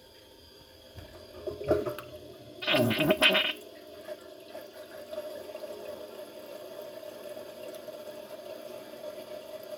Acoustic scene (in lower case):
restroom